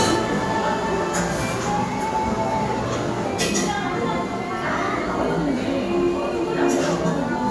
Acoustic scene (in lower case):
cafe